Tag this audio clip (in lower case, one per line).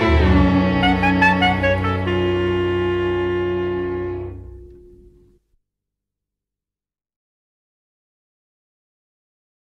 music
jingle (music)